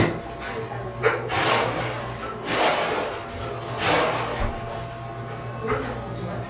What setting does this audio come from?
cafe